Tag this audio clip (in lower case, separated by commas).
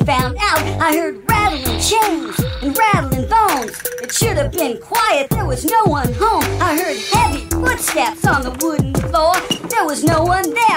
music